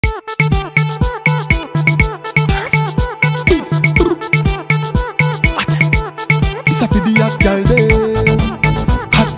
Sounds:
Music, Afrobeat

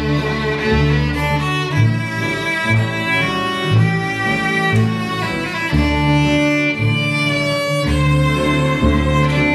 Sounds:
Musical instrument, Music, Violin

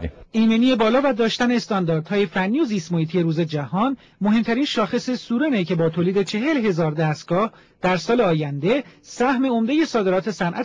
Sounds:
Speech

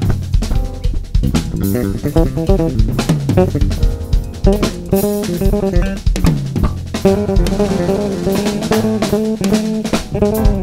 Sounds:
Cymbal, Music, Snare drum, Bass drum, Percussion, Drum kit, Hi-hat, Musical instrument, Drum

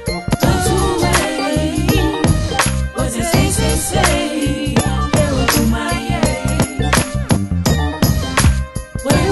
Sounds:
Music, Singing

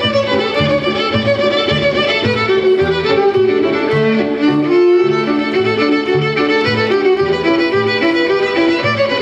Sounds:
Music, fiddle, Musical instrument

